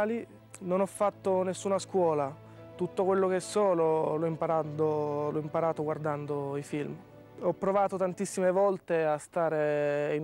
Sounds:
music, speech

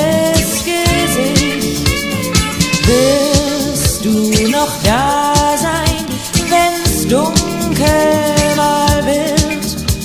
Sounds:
music

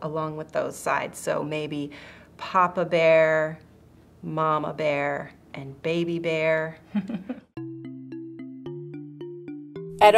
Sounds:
speech, music

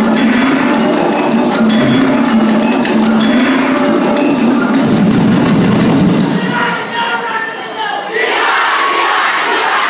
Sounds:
outside, urban or man-made, music, speech

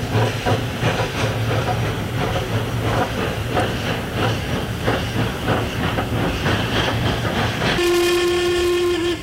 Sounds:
vehicle, railroad car, train, rail transport

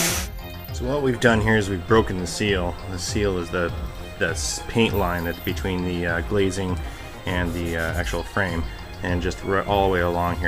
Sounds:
speech, music

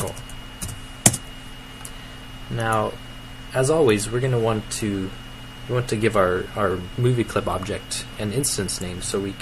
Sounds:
speech

